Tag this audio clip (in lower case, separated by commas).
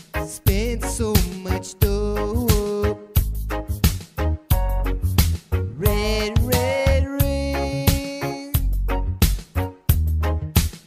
music